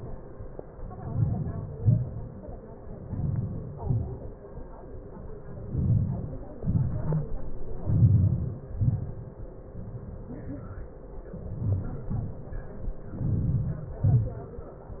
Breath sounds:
1.10-1.65 s: inhalation
1.83-2.25 s: exhalation
3.18-3.69 s: inhalation
3.80-4.33 s: exhalation
5.78-6.39 s: inhalation
6.62-7.17 s: exhalation
7.90-8.56 s: inhalation
8.81-9.30 s: exhalation
11.63-12.06 s: inhalation
12.11-12.49 s: exhalation
13.27-13.82 s: inhalation
14.06-14.48 s: exhalation

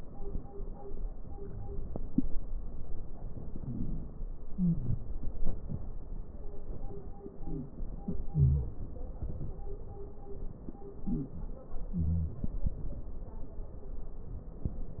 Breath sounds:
3.09-4.35 s: inhalation
3.09-4.35 s: crackles
4.50-5.14 s: wheeze
7.34-7.79 s: wheeze
8.28-8.82 s: wheeze
11.02-11.42 s: wheeze
11.91-12.42 s: wheeze

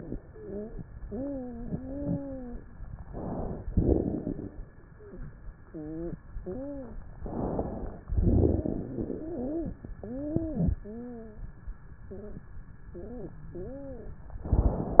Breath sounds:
0.26-0.76 s: wheeze
1.06-2.58 s: wheeze
3.06-3.64 s: inhalation
3.64-4.58 s: exhalation
3.64-4.58 s: crackles
4.88-5.36 s: wheeze
5.70-6.18 s: wheeze
6.40-7.00 s: wheeze
7.18-8.02 s: inhalation
8.06-8.58 s: crackles
8.06-9.00 s: exhalation
8.58-8.84 s: wheeze
9.02-9.78 s: wheeze
9.96-10.72 s: wheeze
10.84-11.44 s: wheeze
12.08-12.48 s: wheeze
12.92-13.38 s: wheeze
13.52-14.18 s: wheeze
14.47-15.00 s: inhalation

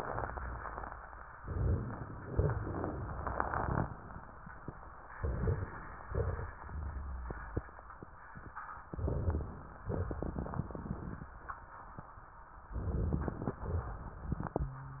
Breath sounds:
1.41-2.51 s: inhalation
1.41-2.51 s: crackles
2.69-3.80 s: exhalation
2.69-3.80 s: crackles
5.14-6.04 s: inhalation
5.14-6.04 s: crackles
6.09-6.62 s: exhalation
6.09-6.62 s: crackles
8.94-9.83 s: inhalation
8.94-9.83 s: crackles
9.90-10.72 s: exhalation
9.90-10.72 s: crackles
12.79-13.61 s: inhalation
12.79-13.61 s: crackles
13.62-14.40 s: exhalation
13.62-14.40 s: crackles

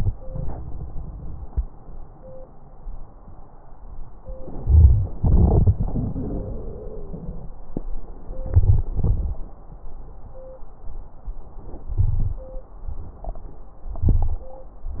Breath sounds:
4.68-5.08 s: inhalation
5.22-7.51 s: exhalation
5.75-7.23 s: wheeze
8.51-8.89 s: inhalation
8.97-9.35 s: exhalation
12.02-12.40 s: inhalation
14.03-14.41 s: inhalation

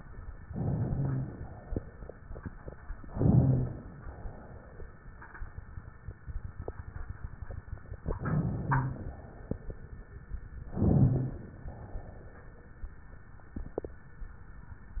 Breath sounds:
0.46-1.66 s: inhalation
1.66-2.74 s: exhalation
2.94-3.92 s: inhalation
3.96-5.04 s: exhalation
8.01-8.95 s: inhalation
8.95-9.97 s: exhalation
10.63-11.57 s: inhalation
11.61-12.86 s: exhalation

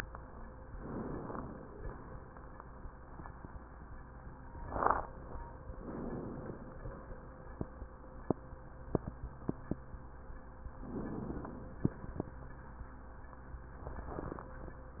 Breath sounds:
0.65-1.73 s: inhalation
5.75-6.83 s: inhalation
10.83-11.92 s: inhalation

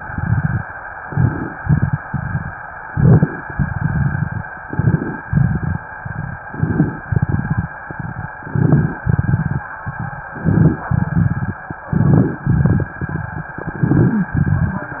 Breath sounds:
0.02-0.67 s: exhalation
1.00-1.56 s: inhalation
1.55-2.51 s: exhalation
2.85-3.46 s: inhalation
3.53-4.48 s: exhalation
4.67-5.28 s: inhalation
5.25-5.83 s: exhalation
6.51-7.06 s: inhalation
7.13-8.35 s: exhalation
8.48-9.03 s: inhalation
9.07-10.29 s: exhalation
10.36-10.89 s: inhalation
10.91-11.63 s: exhalation
11.93-12.46 s: inhalation
12.50-13.59 s: exhalation
13.72-14.32 s: inhalation
14.40-15.00 s: exhalation

